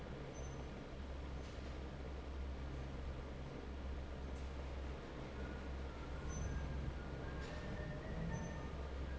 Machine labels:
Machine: fan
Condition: normal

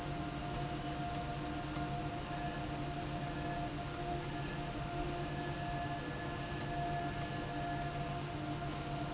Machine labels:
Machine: slide rail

